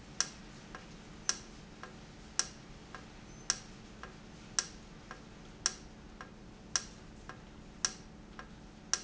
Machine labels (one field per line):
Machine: valve